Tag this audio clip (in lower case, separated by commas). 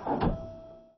mechanisms, printer